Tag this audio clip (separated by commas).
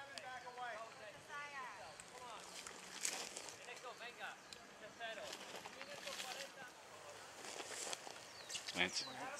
outside, rural or natural, Speech, Run